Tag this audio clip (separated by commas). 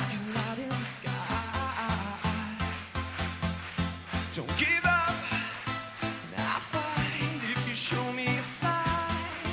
Music, Dance music, Exciting music